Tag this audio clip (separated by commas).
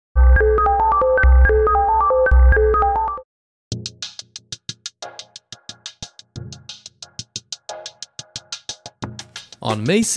Music, inside a large room or hall, Speech